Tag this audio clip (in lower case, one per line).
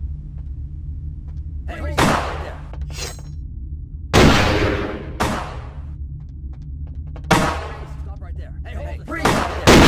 gunfire